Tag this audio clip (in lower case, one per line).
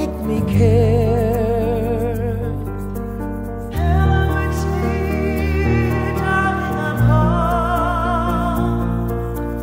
music
echo